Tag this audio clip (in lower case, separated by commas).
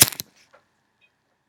fire